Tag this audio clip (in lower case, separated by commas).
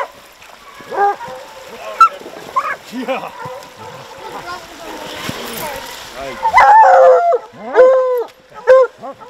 dog baying